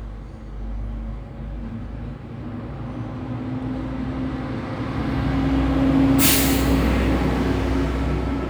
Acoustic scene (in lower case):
street